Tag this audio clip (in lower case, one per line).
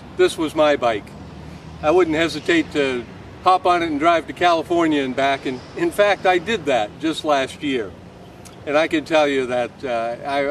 speech